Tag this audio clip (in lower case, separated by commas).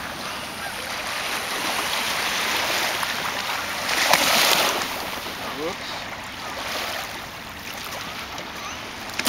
honk, speech